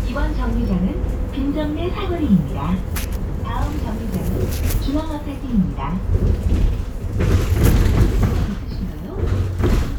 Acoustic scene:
bus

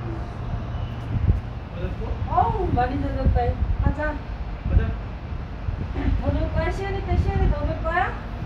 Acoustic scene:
residential area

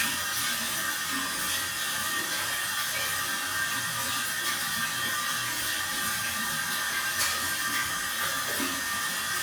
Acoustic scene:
restroom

